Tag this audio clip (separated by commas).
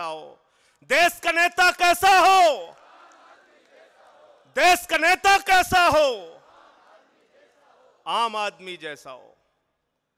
Speech, man speaking